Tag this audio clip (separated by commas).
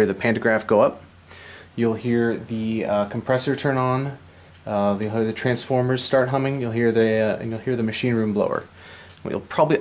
Speech